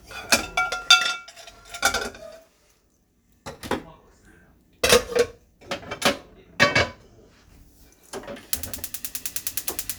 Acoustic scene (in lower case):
kitchen